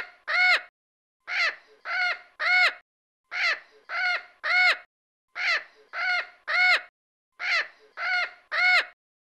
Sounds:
crow cawing

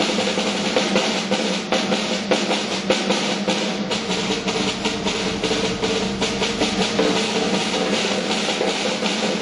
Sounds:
snare drum
bass drum
drum
drum kit
percussion
rimshot
drum roll

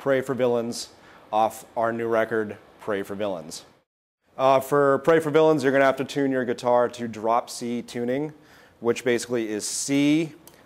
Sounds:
speech

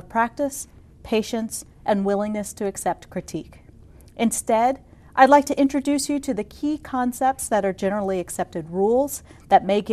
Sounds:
speech

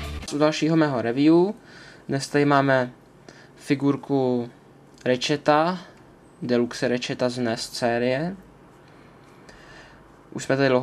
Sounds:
speech

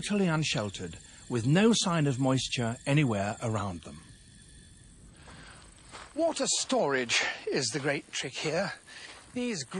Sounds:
speech

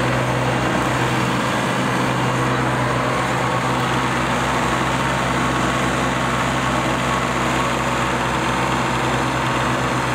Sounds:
lawn mower
lawn mowing
vehicle

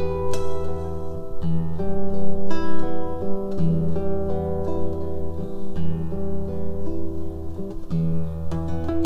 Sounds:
musical instrument
strum
plucked string instrument
acoustic guitar
guitar
music

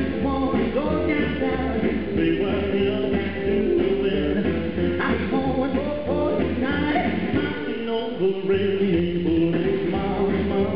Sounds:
music

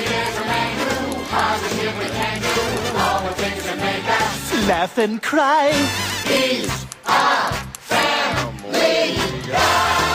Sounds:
tick
tick-tock
music

